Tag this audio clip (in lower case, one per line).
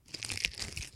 crinkling